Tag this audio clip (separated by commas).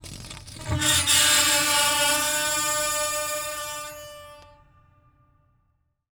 Screech